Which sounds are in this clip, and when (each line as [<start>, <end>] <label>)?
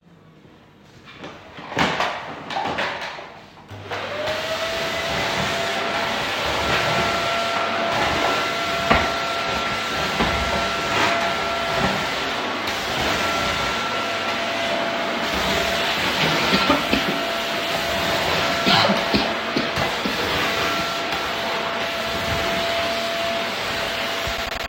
[1.00, 3.45] vacuum cleaner
[3.57, 24.68] vacuum cleaner